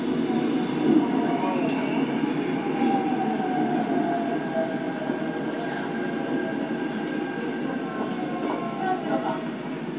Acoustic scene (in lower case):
subway train